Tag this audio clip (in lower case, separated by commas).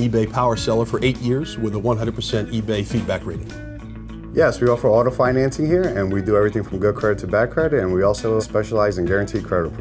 speech, music